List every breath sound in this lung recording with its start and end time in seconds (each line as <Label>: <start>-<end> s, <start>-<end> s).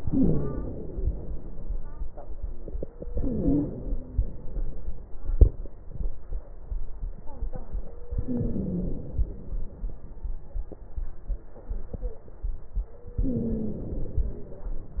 Inhalation: 0.00-1.35 s, 3.17-4.44 s, 8.21-9.57 s, 13.19-14.65 s
Wheeze: 0.00-0.60 s, 3.17-4.10 s, 8.21-9.01 s, 13.19-13.98 s